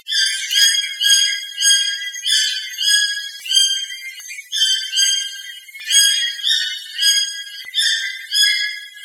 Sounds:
Animal, Bird, Wild animals

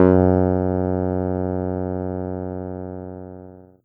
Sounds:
Music, Keyboard (musical), Musical instrument

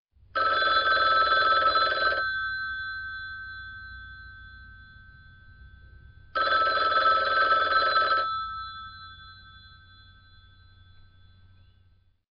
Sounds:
Telephone, Alarm

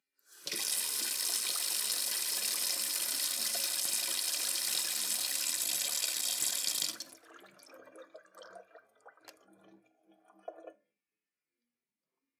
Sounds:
Domestic sounds, Sink (filling or washing)

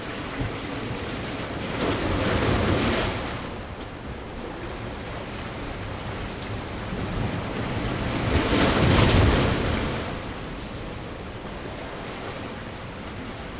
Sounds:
surf, Ocean, Water

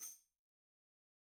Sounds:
Tambourine, Percussion, Musical instrument, Music

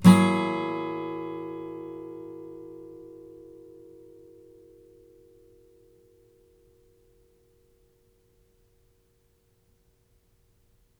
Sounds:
Musical instrument, Music, Plucked string instrument, Guitar, Strum

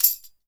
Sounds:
Musical instrument, Tambourine, Percussion, Music

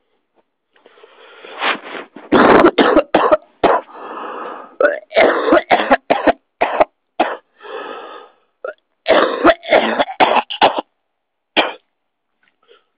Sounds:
Respiratory sounds, Cough

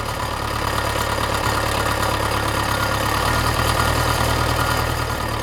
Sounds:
Engine

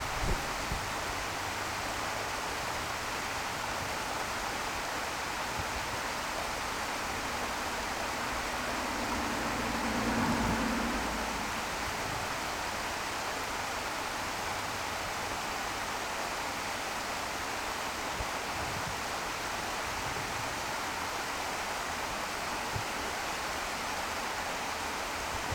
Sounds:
Water

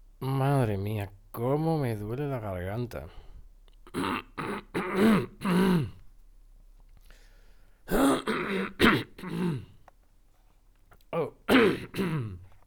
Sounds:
Respiratory sounds, Cough

